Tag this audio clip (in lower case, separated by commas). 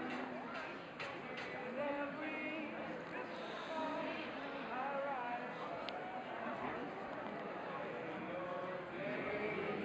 male singing, speech